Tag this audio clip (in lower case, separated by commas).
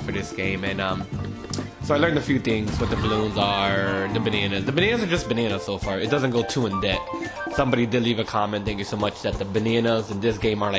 speech, music